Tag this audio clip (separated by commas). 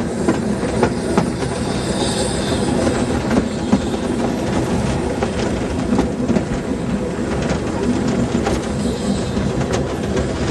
Vehicle, train wagon, Train, Rail transport